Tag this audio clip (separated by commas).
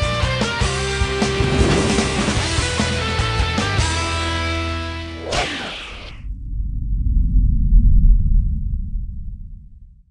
Music